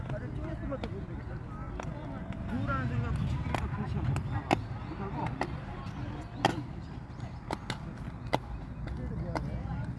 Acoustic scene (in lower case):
park